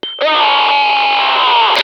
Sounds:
human voice
screaming

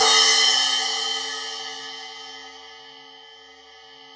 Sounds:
hi-hat
cymbal
music
musical instrument
percussion

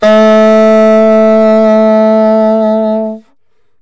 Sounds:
wind instrument
musical instrument
music

